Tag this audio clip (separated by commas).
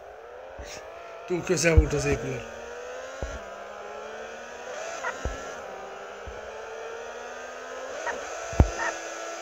Vehicle, Car, Motor vehicle (road), Speech